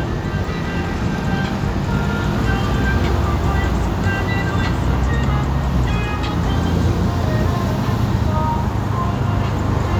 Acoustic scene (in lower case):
street